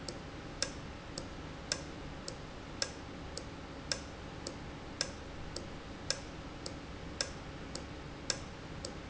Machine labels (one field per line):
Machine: valve